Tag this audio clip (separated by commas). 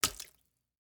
Liquid, splatter